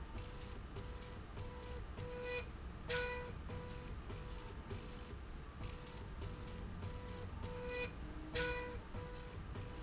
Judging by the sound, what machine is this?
slide rail